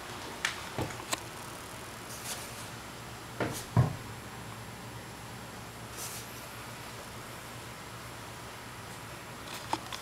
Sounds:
ferret dooking

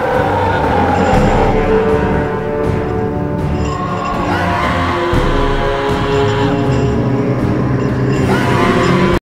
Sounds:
Music

